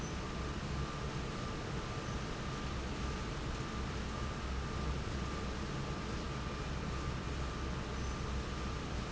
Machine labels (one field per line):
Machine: fan